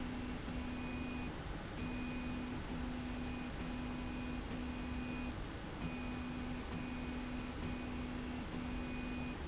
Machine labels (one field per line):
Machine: slide rail